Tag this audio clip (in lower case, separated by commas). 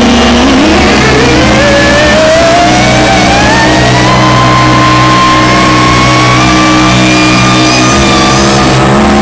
noise, electronic music, music, theremin